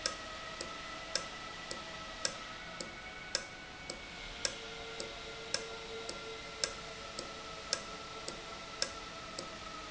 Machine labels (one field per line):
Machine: valve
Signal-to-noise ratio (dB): 0 dB